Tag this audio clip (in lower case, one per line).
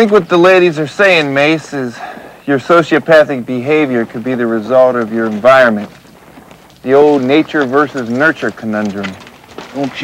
man speaking
speech
monologue